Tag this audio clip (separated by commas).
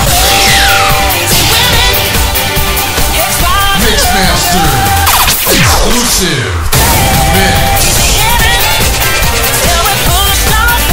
Speech, Exciting music, Jazz, Music